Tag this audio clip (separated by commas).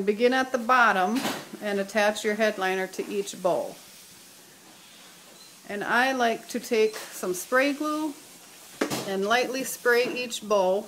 Speech, inside a small room